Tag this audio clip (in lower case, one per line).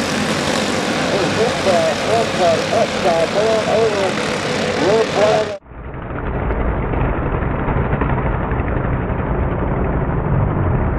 speech